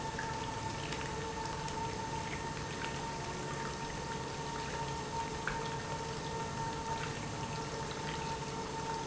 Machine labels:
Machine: pump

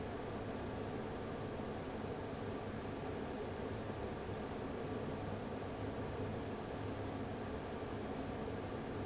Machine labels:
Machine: fan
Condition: abnormal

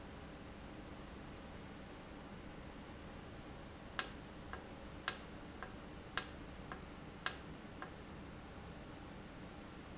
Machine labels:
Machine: valve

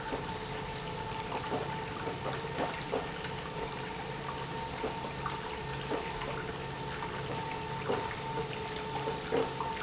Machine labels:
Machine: pump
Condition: abnormal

